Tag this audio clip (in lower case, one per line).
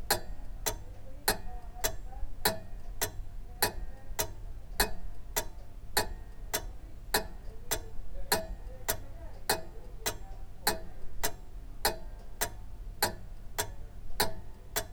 mechanisms
clock